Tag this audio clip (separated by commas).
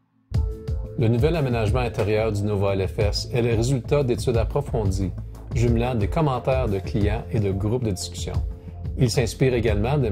Music, Speech